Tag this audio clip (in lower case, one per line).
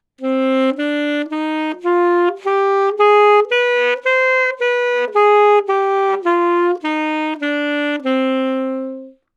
woodwind instrument
musical instrument
music